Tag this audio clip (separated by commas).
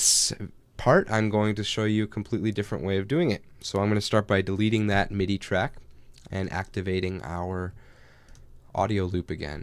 Speech